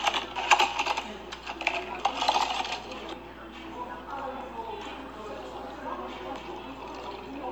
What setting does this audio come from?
cafe